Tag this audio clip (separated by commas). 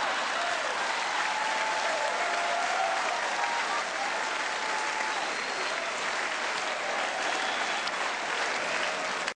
Applause, people clapping